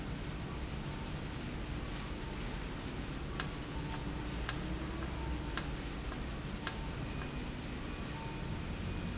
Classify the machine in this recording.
valve